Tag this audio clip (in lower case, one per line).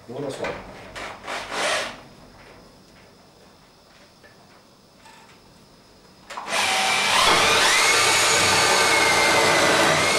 speech